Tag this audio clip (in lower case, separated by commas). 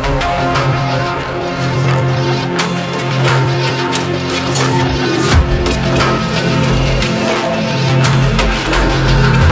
music, drum and bass